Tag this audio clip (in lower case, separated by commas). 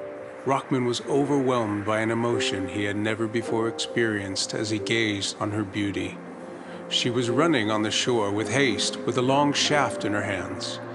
music, speech